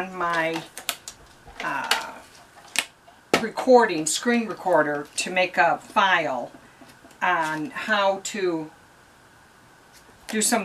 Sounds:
speech

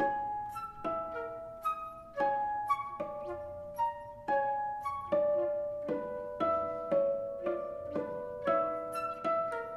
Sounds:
pizzicato, harp

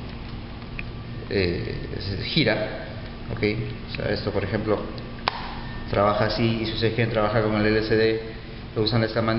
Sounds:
speech

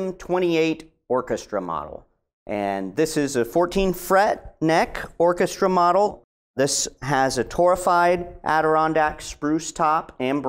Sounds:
speech

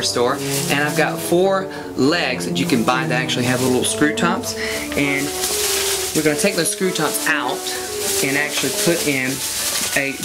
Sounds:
speech, music, inside a small room

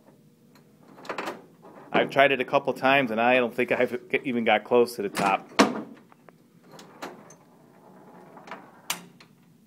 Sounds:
inside a small room, speech

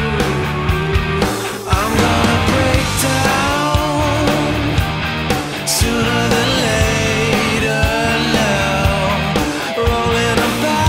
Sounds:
rock music

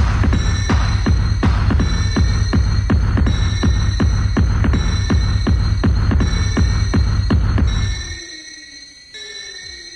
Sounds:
music, techno

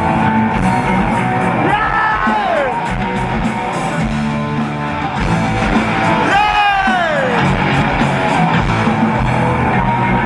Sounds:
music

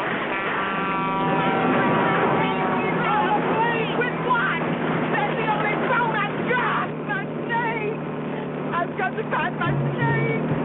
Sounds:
vehicle, speech

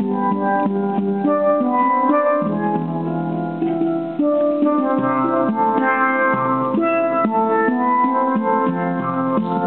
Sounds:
playing steelpan

